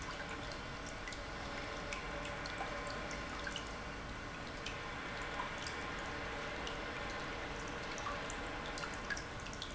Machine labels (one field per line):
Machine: pump